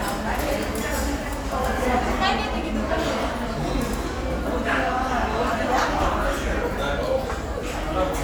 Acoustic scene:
restaurant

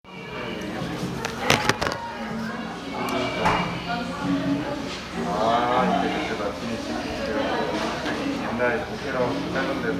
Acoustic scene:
crowded indoor space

